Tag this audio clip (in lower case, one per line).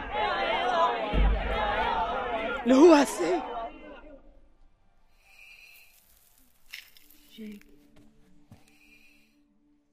speech